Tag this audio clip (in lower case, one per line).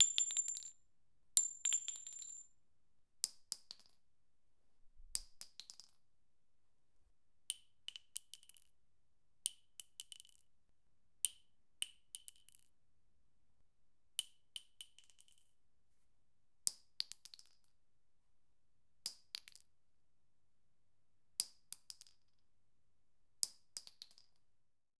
chink
glass